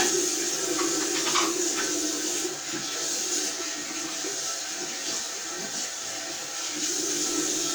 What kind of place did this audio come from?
restroom